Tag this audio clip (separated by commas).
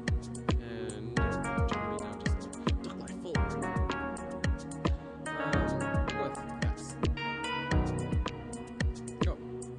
Music